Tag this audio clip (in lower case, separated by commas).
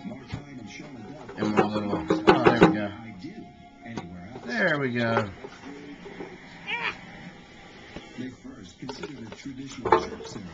speech, music